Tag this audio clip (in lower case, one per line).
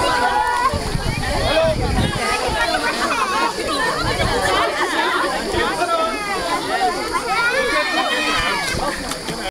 speech